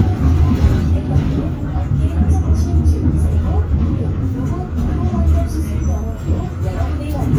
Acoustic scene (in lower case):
bus